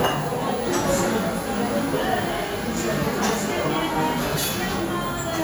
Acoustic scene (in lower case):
cafe